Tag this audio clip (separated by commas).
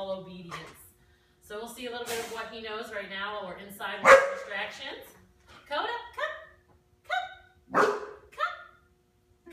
Yip, Speech